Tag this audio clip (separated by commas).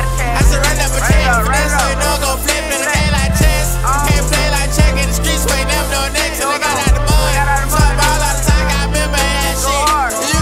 Music